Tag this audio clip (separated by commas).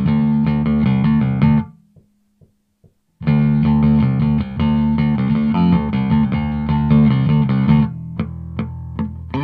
Musical instrument, Bass guitar, Plucked string instrument, Guitar, Music